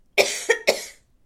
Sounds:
respiratory sounds, cough

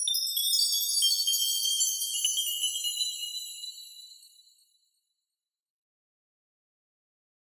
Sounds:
bell, chime

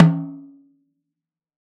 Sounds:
drum, music, snare drum, musical instrument, percussion

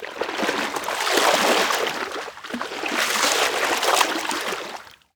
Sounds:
liquid, splash

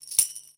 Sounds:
tambourine, musical instrument, music, percussion

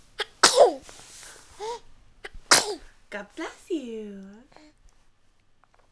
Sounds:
respiratory sounds, sneeze

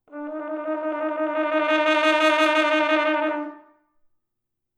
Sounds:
music, brass instrument, musical instrument

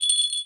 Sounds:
bell

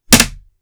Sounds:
thump, wood

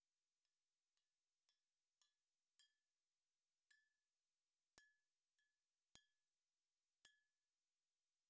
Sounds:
glass, chink

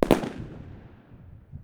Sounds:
explosion, fireworks

